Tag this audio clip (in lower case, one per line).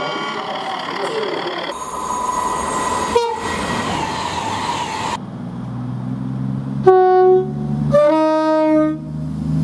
train horning